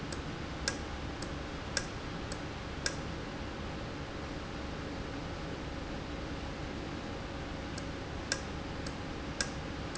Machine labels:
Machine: valve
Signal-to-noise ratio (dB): -6 dB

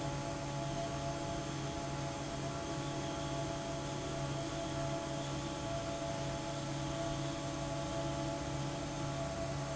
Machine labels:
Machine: fan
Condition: normal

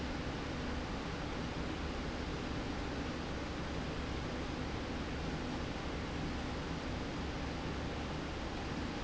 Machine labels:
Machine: slide rail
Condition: normal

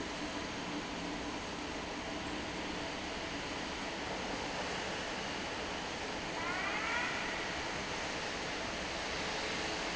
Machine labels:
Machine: fan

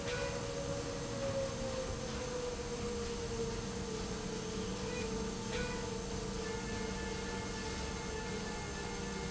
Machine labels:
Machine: slide rail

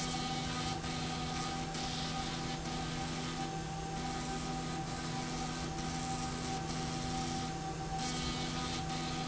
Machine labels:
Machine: slide rail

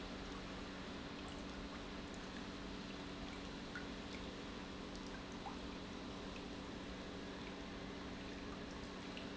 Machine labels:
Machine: pump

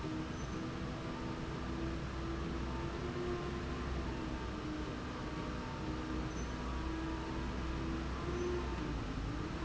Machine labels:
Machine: slide rail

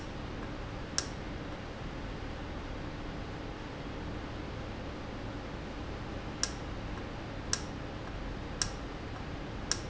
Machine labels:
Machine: valve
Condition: normal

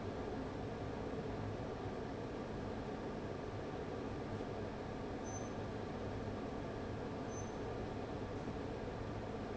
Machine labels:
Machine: fan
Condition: abnormal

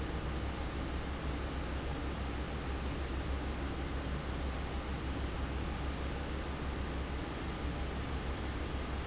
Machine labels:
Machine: fan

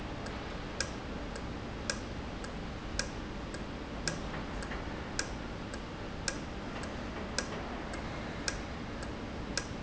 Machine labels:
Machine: valve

